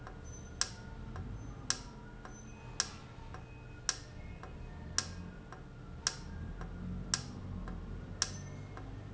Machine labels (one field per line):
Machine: valve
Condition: normal